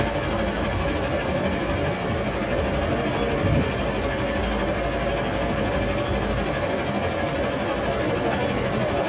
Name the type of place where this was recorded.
street